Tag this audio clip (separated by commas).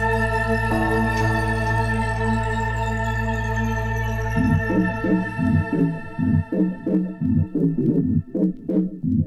Music